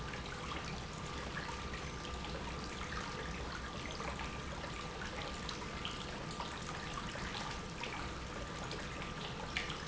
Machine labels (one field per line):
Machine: pump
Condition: normal